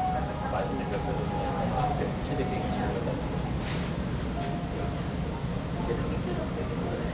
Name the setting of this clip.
restaurant